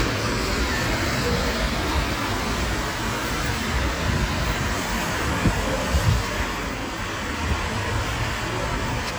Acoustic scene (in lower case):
street